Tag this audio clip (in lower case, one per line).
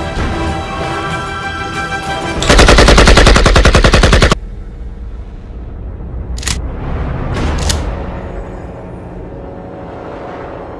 machine gun